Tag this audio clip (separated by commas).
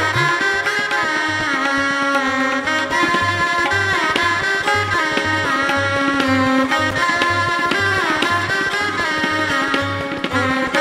Carnatic music, Musical instrument